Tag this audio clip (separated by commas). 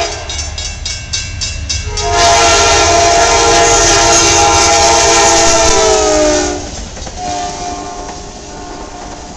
Vehicle, Train, train wagon, Rail transport